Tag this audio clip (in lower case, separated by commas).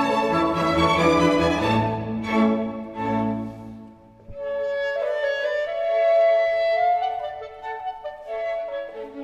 playing clarinet